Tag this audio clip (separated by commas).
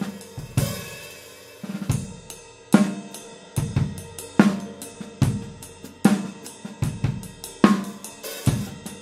Bass drum, Music, Snare drum